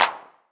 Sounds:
hands
clapping

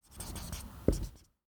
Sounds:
writing
home sounds

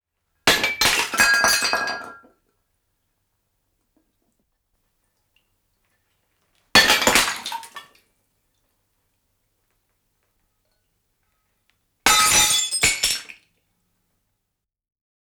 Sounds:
glass
shatter

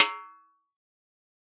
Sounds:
musical instrument
percussion
drum
snare drum
music

